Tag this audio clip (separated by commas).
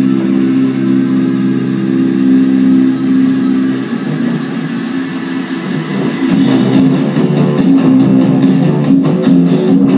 Plucked string instrument, Music, Guitar, Bass guitar, Rock music, Musical instrument